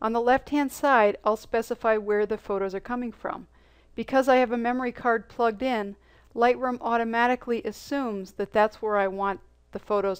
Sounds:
speech

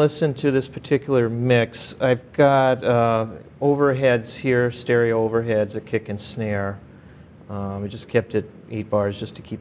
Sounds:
speech

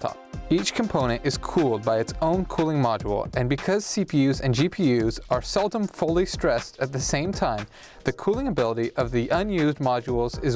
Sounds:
speech

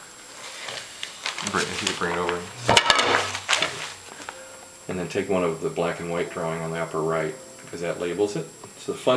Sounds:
speech

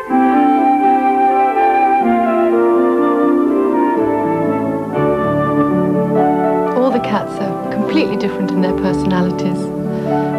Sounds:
french horn
television

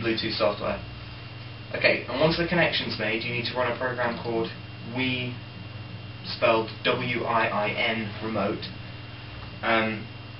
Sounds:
speech

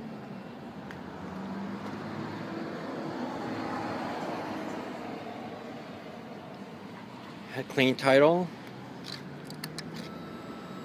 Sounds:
speech

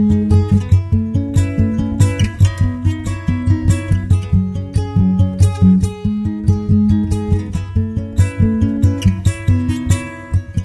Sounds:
music

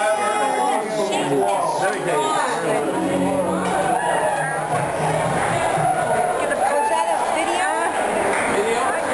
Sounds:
speech
music
inside a public space

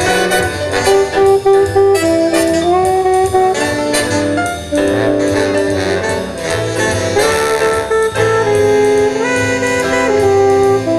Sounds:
music

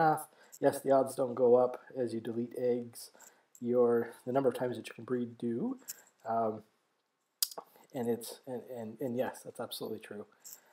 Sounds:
speech

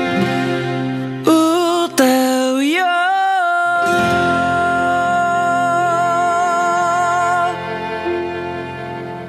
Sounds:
music

